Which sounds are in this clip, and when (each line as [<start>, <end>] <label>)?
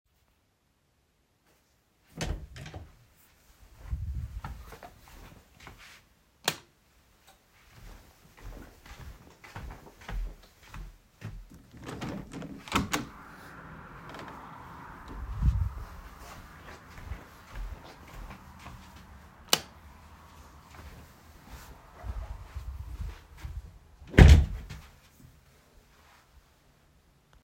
[2.00, 3.24] door
[4.32, 6.05] footsteps
[6.35, 6.88] light switch
[7.65, 11.72] footsteps
[11.75, 14.45] window
[16.12, 19.22] footsteps
[19.37, 19.75] light switch
[20.58, 23.91] footsteps
[24.06, 24.89] door